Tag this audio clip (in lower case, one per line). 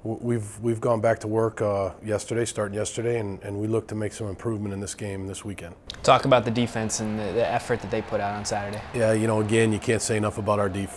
speech